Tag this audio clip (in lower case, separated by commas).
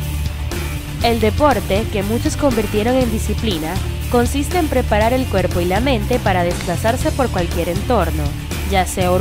music, speech